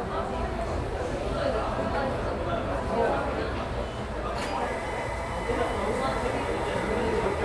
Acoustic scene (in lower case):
cafe